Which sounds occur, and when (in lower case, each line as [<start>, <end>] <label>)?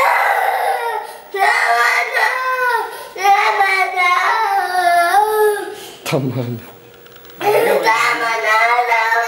[0.00, 1.00] sobbing
[0.00, 9.25] mechanisms
[0.99, 1.27] breathing
[1.31, 2.81] sobbing
[2.84, 3.16] breathing
[3.09, 5.66] sobbing
[5.68, 6.04] breathing
[6.04, 6.67] male speech
[6.90, 7.34] crack
[7.34, 9.25] sobbing
[7.35, 8.34] male speech